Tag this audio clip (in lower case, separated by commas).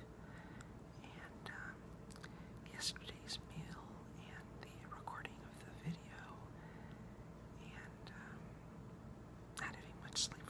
speech